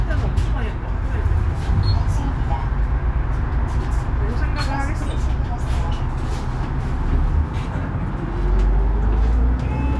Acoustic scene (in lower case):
bus